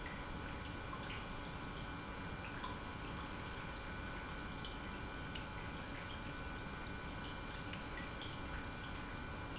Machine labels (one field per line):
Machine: pump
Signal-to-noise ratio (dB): 6 dB